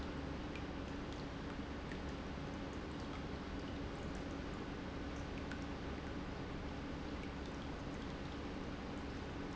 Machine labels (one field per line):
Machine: pump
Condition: normal